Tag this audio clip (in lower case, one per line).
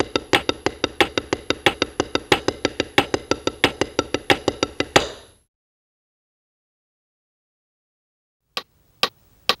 music
drum
musical instrument
inside a large room or hall